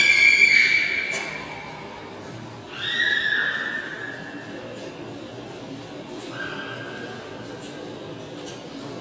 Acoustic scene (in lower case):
subway station